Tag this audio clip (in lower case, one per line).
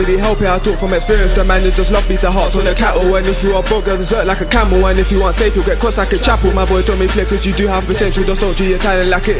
music
funk